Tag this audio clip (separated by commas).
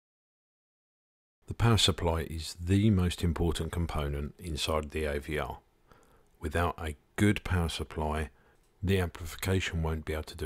Speech